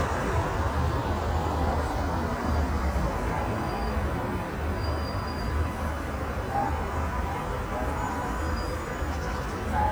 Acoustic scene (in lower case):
street